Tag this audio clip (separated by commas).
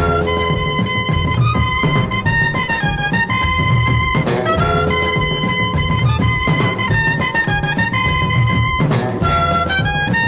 Swing music, Music